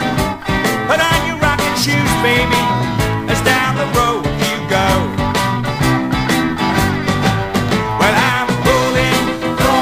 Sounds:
music, rock and roll, roll

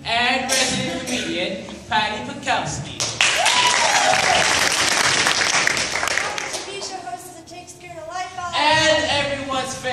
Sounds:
speech

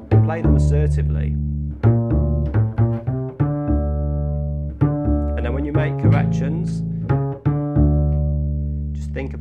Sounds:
playing double bass

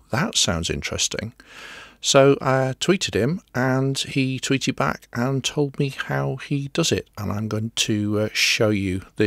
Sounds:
speech

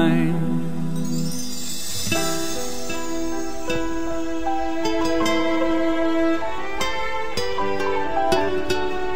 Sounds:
music

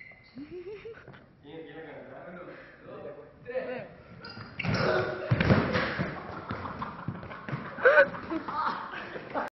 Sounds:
speech, inside a large room or hall

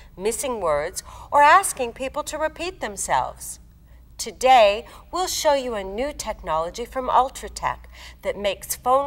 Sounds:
speech

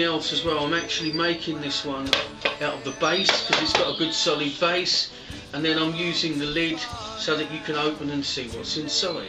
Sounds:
musical instrument, speech, music, plucked string instrument

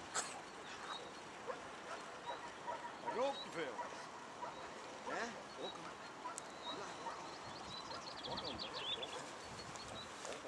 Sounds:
animal, speech, pets

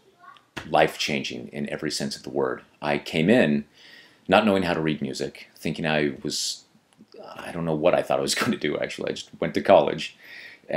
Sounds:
speech

